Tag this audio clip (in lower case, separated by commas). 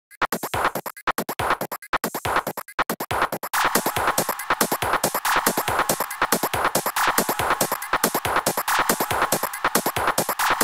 electronic music, music, techno